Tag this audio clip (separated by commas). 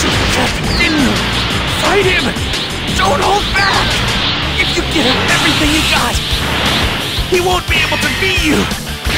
Speech, Music